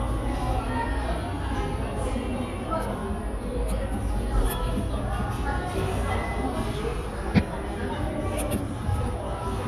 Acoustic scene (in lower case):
cafe